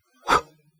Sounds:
Respiratory sounds, Breathing

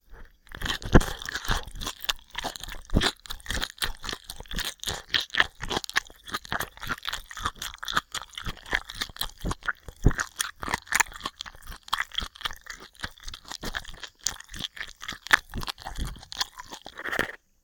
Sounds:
Chewing

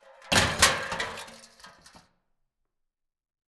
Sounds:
Crushing

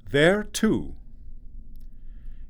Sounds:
Male speech, Human voice, Speech

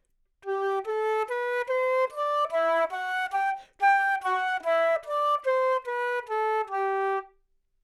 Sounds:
Musical instrument, Wind instrument, Music

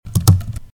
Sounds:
Typing, Domestic sounds

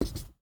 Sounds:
home sounds, Writing

